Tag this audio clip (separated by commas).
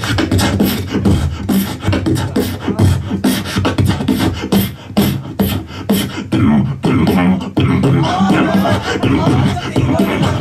Beatboxing, Speech